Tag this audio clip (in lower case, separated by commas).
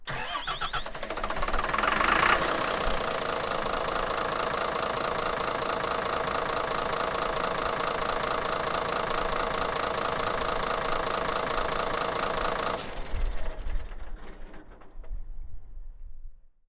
vehicle, bus, engine starting, engine, motor vehicle (road)